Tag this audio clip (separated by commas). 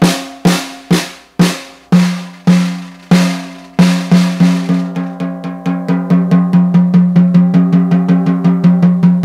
Snare drum, playing snare drum, Percussion, Rimshot, Drum, Drum roll